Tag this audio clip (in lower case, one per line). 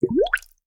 water
gurgling